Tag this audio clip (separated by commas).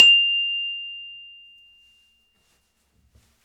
Glockenspiel, Music, Percussion, Musical instrument, Mallet percussion